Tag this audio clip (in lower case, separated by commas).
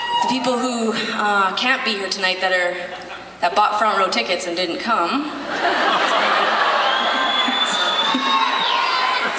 speech